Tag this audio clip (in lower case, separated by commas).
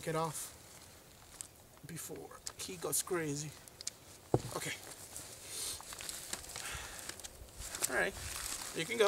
speech